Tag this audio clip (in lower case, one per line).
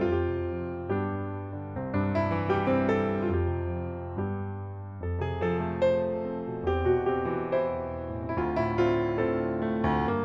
music
piano
electric piano
musical instrument
keyboard (musical)